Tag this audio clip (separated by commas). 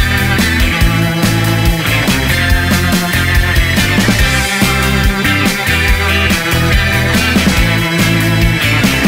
Music